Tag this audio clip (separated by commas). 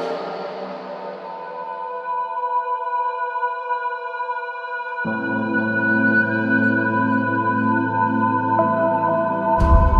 Music, Musical instrument